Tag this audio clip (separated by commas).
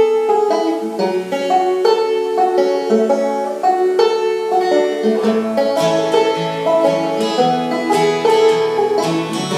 Musical instrument, Country, Guitar, Plucked string instrument, Banjo, playing banjo, Bluegrass